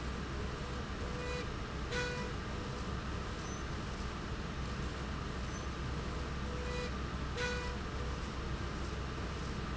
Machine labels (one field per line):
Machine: slide rail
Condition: normal